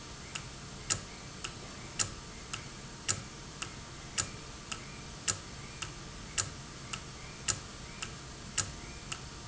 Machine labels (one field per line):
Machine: valve